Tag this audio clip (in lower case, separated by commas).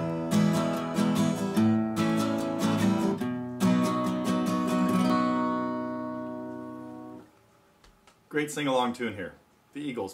plucked string instrument, guitar, strum, musical instrument, acoustic guitar, speech, music